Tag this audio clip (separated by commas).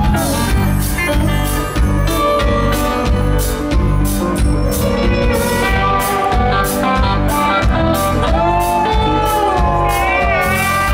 Rhythm and blues, Music